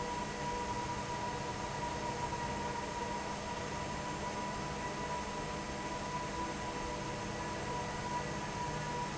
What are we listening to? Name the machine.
fan